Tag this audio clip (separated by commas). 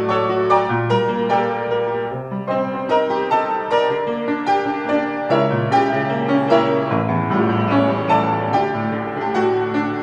Music